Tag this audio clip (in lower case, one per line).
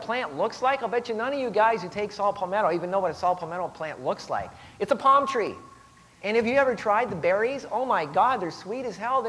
speech